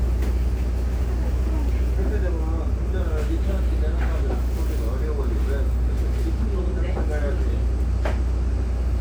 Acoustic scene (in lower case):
bus